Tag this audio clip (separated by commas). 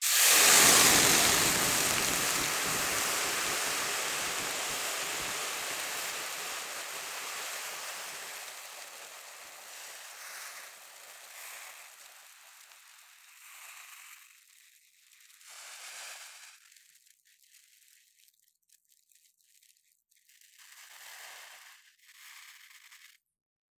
Hiss, Boiling, Liquid